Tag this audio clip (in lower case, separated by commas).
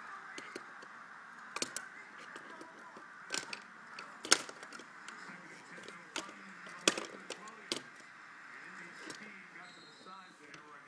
speech